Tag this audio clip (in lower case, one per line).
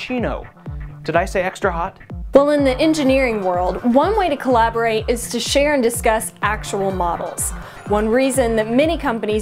music
speech